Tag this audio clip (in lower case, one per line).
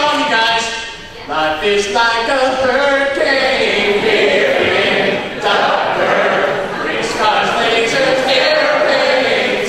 speech